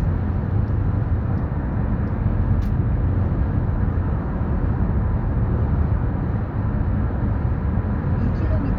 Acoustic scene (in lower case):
car